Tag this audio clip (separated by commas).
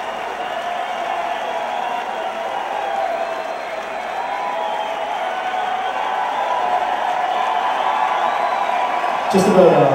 Male speech, Speech, Narration